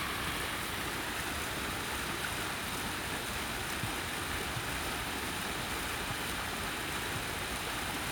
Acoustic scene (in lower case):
park